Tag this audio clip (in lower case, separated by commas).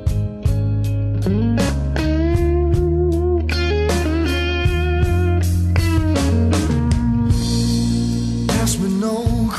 music